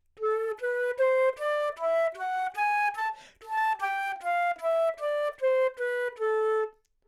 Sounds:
Musical instrument, Music, Wind instrument

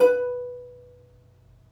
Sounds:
Music, Plucked string instrument, Musical instrument

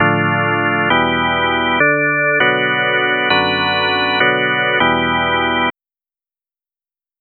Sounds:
Music, Musical instrument, Keyboard (musical), Organ

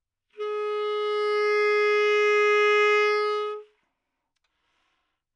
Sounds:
Musical instrument, Music, woodwind instrument

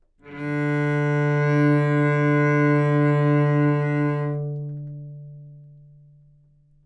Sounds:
Musical instrument, Music, Bowed string instrument

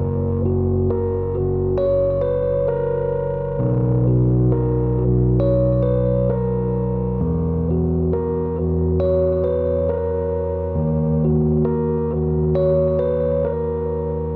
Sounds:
Piano, Music, Keyboard (musical), Musical instrument

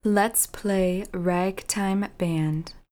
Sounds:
Human voice, Speech, woman speaking

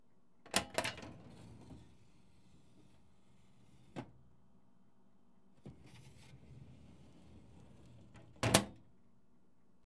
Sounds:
home sounds, Drawer open or close

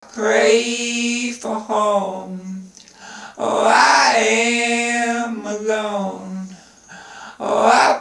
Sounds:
Human voice

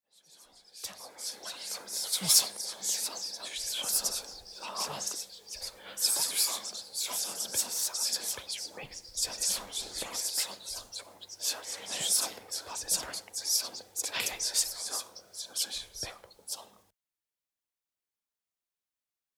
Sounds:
Human voice, Whispering

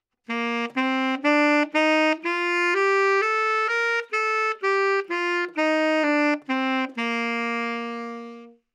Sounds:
Wind instrument, Music, Musical instrument

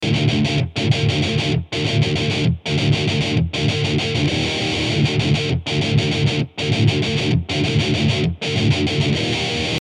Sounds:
Plucked string instrument, Guitar, Musical instrument, Music

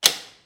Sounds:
Speech, Human voice, man speaking

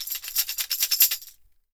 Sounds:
Music, Tambourine, Percussion, Musical instrument

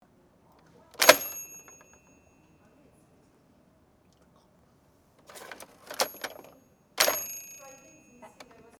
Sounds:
Mechanisms

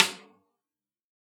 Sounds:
Music, Drum, Snare drum, Musical instrument, Percussion

